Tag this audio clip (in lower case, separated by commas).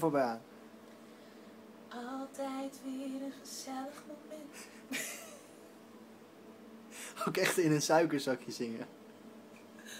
speech, inside a small room